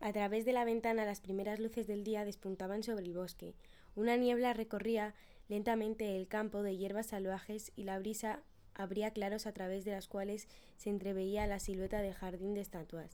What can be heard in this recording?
speech